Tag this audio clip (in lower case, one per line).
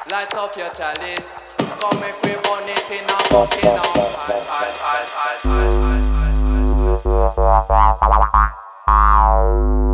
electronic music
music